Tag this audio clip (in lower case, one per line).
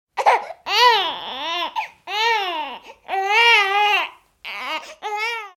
human voice
sobbing